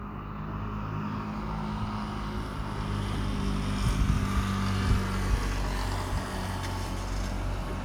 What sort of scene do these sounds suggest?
street